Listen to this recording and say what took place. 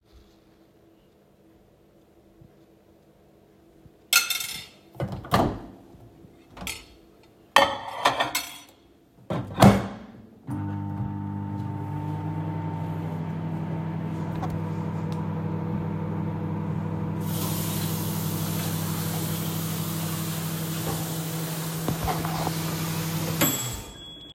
I brought out a plate of food and a spoon. I put the plate into the microwave and turned it on. Then I turned on the water to wash my hands.